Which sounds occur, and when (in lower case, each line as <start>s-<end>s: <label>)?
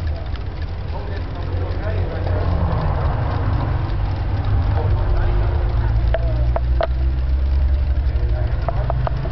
0.0s-9.3s: mechanisms
0.0s-9.3s: tick